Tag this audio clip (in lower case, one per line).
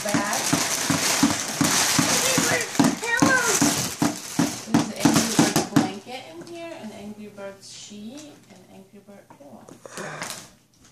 crackle
kid speaking